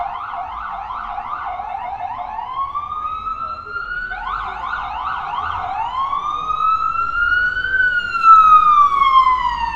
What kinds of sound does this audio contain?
siren